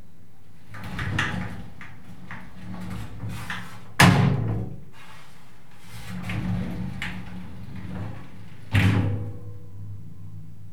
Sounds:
Sliding door, Door, Domestic sounds

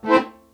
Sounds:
Musical instrument, Music, Accordion

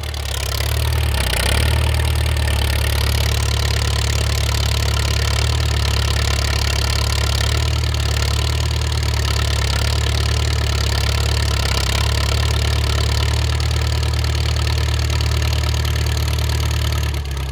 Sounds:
Engine

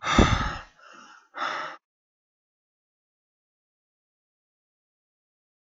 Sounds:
Respiratory sounds, Breathing

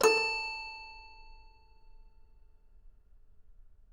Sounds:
Music, Keyboard (musical), Musical instrument

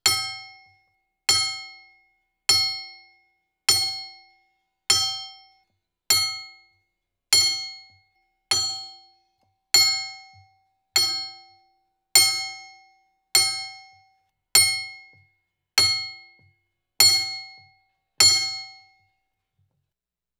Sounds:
Tools, Glass, Hammer, Chink

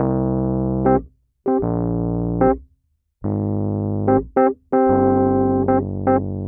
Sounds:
Music, Keyboard (musical), Musical instrument, Piano

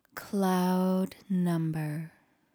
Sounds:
Speech, woman speaking, Human voice

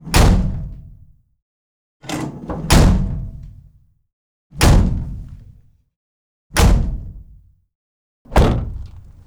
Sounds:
Slam, Truck, Motor vehicle (road), Door, Car, Domestic sounds, Vehicle

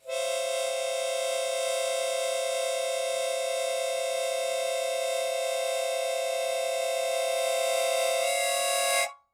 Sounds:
Harmonica, Music, Musical instrument

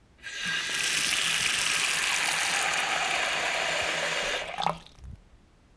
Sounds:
Domestic sounds, Sink (filling or washing)

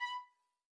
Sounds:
Music, Bowed string instrument, Musical instrument

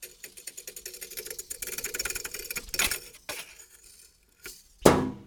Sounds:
Thump

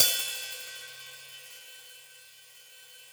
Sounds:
Music, Musical instrument, Hi-hat, Percussion, Cymbal

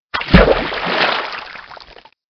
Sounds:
Splash, Liquid

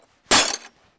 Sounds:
Shatter, Glass

